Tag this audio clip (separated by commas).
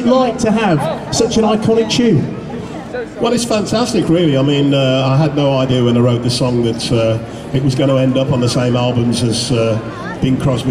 Speech